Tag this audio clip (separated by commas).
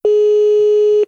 Telephone, Alarm